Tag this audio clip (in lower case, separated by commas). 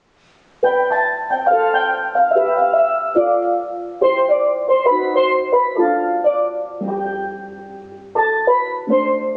playing steelpan